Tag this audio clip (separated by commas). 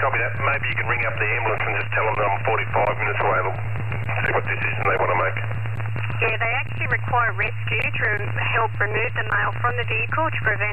Radio, Speech